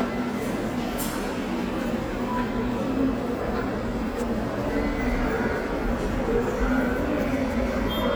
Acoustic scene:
subway station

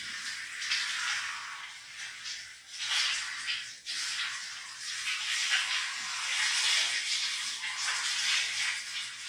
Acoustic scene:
restroom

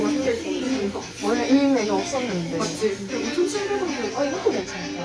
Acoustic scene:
restaurant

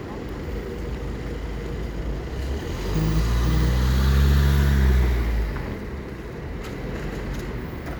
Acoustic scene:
street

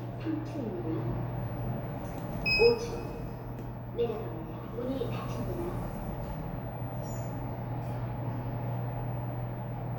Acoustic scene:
elevator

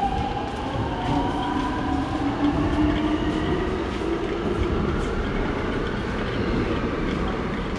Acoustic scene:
subway station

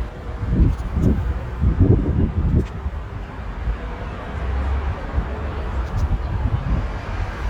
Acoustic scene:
residential area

